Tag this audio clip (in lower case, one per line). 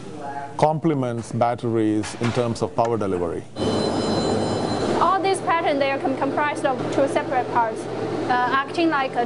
speech